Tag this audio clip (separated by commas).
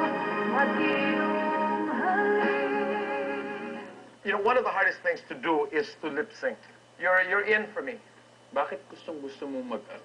Speech, Music